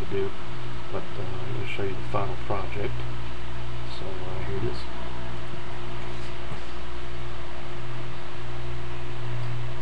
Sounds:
Speech

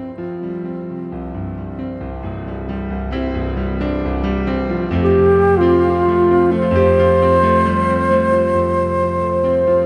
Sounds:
Music

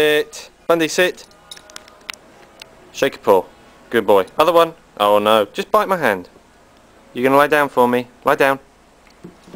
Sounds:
Speech

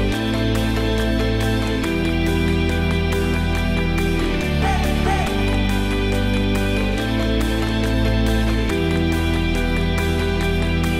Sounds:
Music

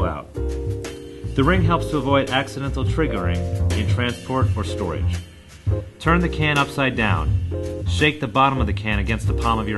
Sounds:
Music, Speech

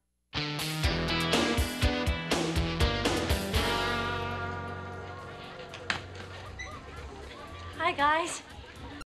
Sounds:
Music, Speech

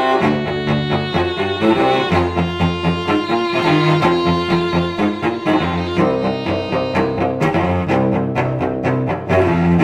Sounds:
Music, Musical instrument, Cello, Violin

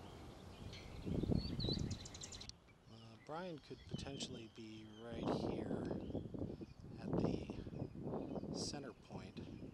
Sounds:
Speech

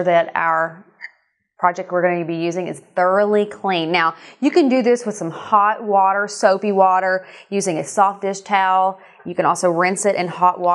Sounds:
Speech

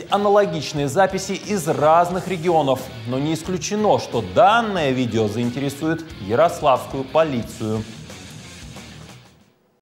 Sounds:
Speech, Music

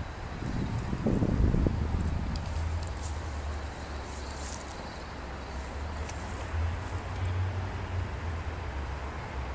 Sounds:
outside, rural or natural

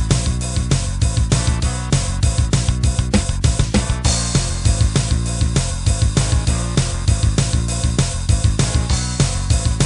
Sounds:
Music

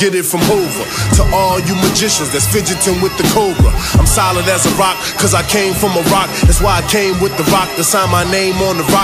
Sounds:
Music, Electronica

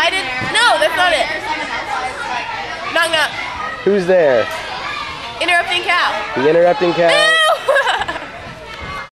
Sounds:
Speech

